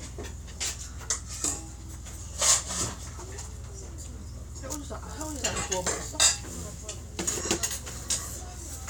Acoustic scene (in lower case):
restaurant